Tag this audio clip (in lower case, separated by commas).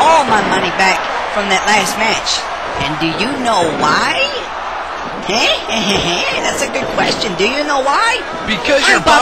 speech